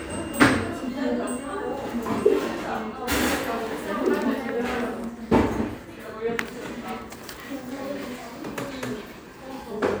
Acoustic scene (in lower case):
cafe